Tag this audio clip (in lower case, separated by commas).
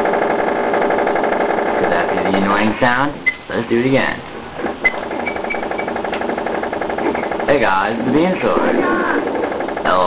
speech